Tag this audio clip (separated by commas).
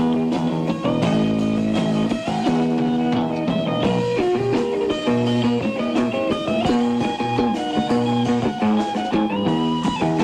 Music, Blues